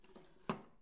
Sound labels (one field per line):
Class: drawer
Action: closing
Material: wooden